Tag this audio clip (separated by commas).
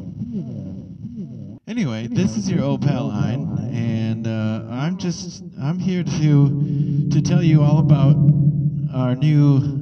Echo, Speech